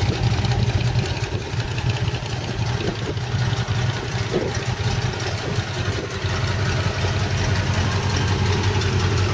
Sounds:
Car, Vehicle

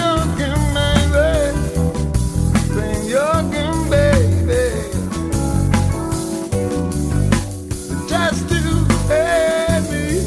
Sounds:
Funk, Music

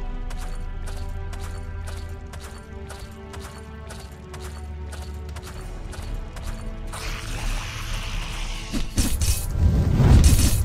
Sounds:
Music, Run

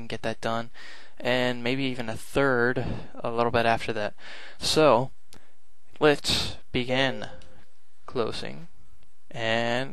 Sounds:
Speech

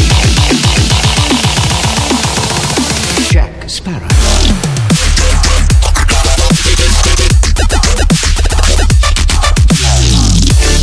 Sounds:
Music, Dubstep, Song

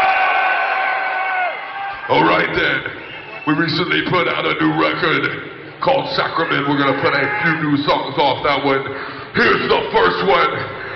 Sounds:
Speech

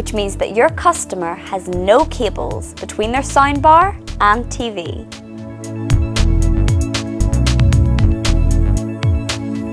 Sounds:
Speech, Music

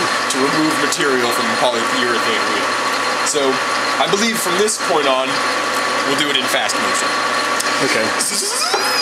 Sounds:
Speech

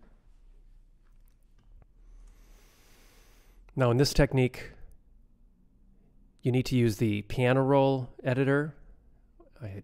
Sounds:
inside a small room, Speech

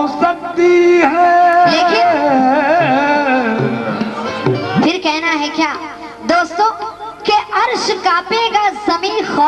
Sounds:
Carnatic music, Music, Singing

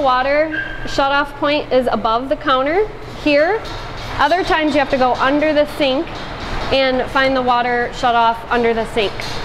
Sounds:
Speech

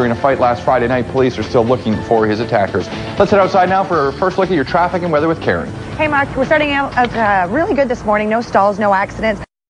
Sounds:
Music, Television, Speech

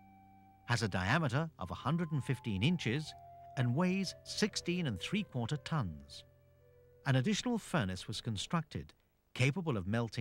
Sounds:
Speech, Music

